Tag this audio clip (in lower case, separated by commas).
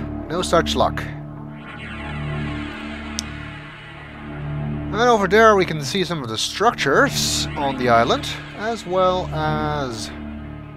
speech, music